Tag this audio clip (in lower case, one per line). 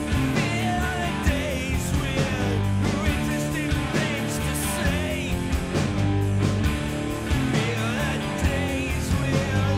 music